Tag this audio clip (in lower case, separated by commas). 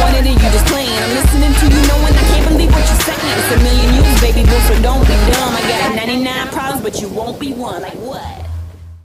music